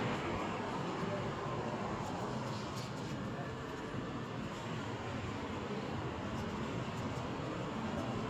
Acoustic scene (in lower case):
street